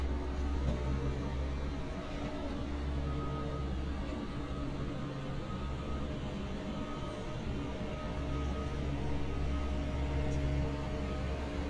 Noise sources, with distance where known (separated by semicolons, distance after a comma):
engine of unclear size